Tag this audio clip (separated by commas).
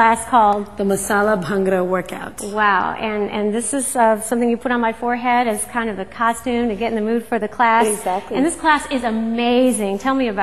Speech